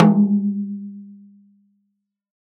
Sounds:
Snare drum, Percussion, Music, Musical instrument, Drum

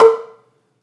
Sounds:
Mallet percussion, xylophone, Percussion, Musical instrument, Music

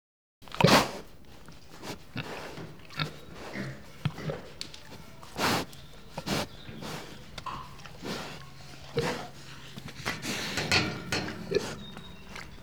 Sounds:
livestock, Animal

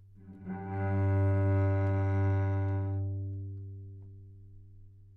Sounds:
Bowed string instrument, Music, Musical instrument

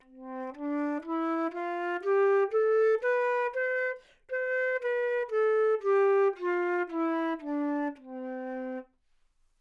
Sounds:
Musical instrument, woodwind instrument, Music

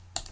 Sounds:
Computer keyboard, home sounds, Typing

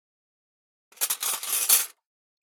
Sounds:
Cutlery, home sounds

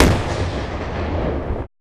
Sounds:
Boom, Explosion

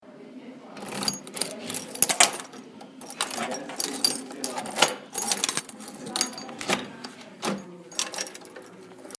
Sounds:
Keys jangling, Domestic sounds

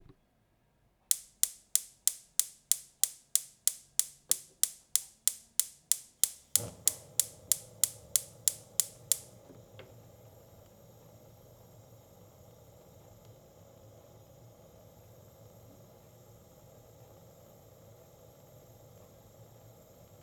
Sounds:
Fire

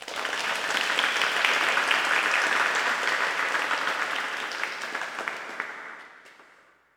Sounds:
Applause, Crowd, Human group actions

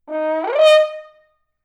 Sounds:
Brass instrument, Music, Musical instrument

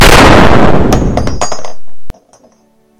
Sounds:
Explosion, gunfire

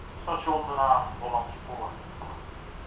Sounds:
Rail transport, Vehicle, Train

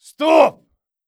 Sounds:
Shout, Male speech, Speech, Human voice

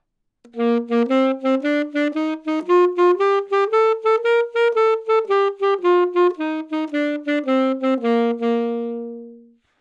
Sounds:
woodwind instrument, Musical instrument, Music

